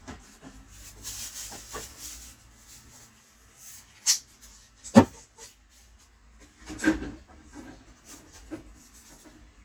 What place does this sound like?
kitchen